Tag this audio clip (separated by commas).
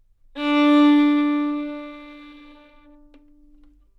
Musical instrument, Music, Bowed string instrument